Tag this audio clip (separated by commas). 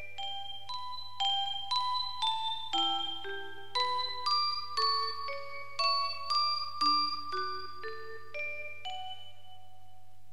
Music, Glockenspiel